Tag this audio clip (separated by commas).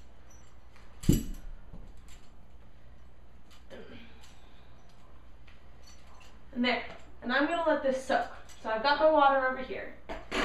Speech